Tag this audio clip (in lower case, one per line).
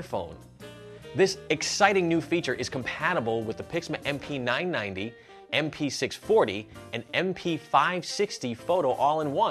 speech
music